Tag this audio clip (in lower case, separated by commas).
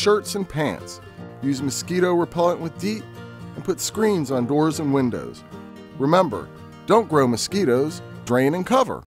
music, speech